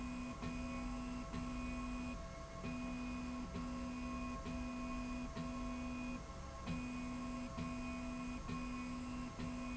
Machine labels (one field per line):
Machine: slide rail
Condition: normal